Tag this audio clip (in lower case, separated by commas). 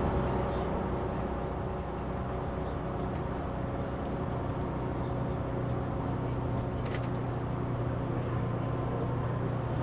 speech